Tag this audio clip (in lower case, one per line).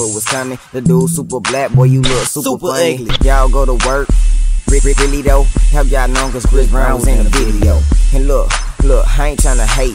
music